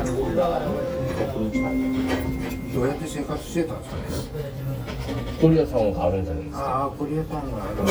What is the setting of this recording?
restaurant